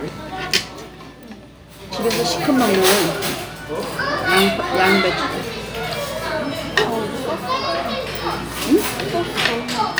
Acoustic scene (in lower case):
restaurant